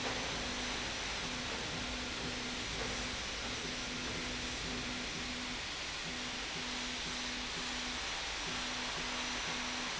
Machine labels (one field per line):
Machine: slide rail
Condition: normal